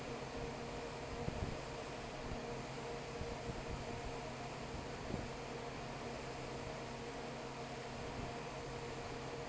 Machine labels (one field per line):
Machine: fan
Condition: normal